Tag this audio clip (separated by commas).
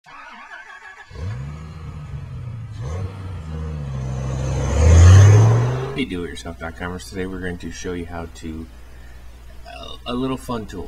Speech, Vehicle